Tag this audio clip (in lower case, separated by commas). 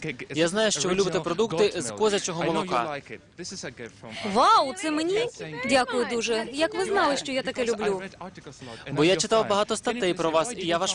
speech